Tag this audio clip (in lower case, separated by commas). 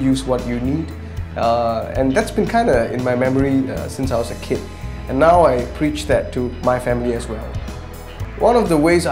music, speech